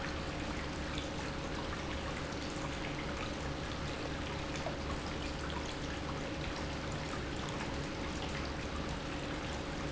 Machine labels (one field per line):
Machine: pump